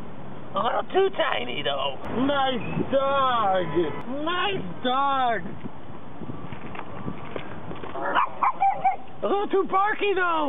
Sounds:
speech, outside, urban or man-made, pets, animal, dog

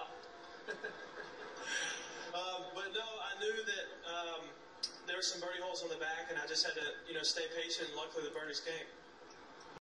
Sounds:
speech

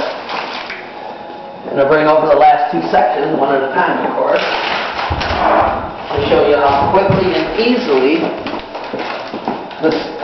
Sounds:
speech

